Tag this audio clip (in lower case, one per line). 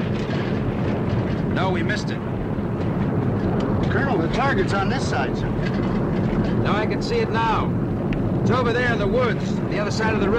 speech